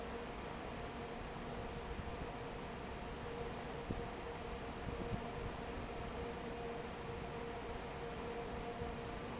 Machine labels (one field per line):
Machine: fan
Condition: normal